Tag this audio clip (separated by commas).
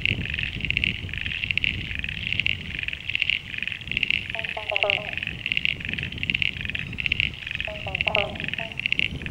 Frog